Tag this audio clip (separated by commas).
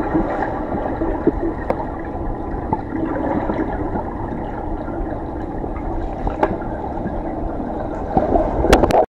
Trickle